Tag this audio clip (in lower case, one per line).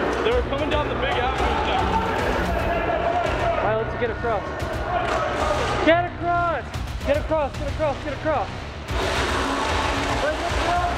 speech
music